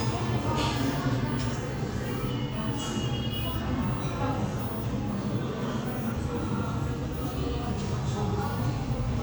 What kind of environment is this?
crowded indoor space